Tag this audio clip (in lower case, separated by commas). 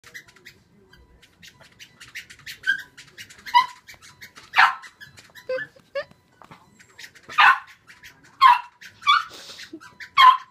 animal, inside a small room, pets, bird